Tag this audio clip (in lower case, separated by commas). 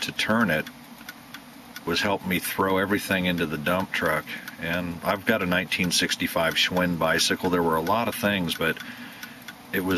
tick-tock, speech